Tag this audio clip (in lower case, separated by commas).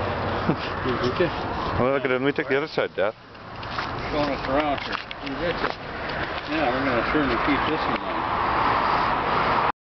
speech